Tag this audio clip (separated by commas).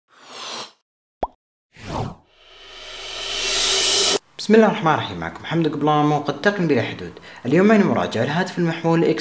Speech, Plop, Music